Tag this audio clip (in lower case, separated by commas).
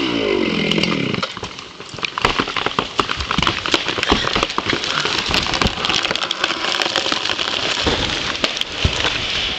crackle